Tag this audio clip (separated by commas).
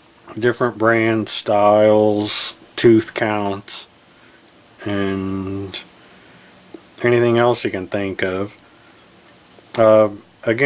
Speech